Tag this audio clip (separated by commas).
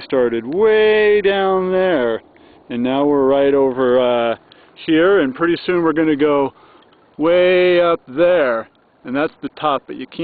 Speech